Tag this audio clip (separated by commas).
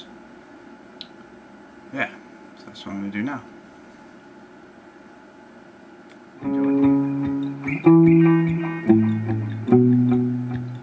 Guitar, Music, Plucked string instrument, Speech, Musical instrument